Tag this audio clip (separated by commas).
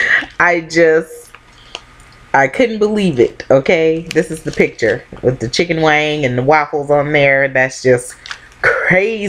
Speech